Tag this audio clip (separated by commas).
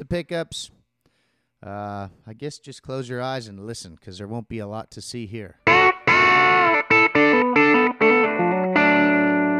Music, Speech, Musical instrument, Guitar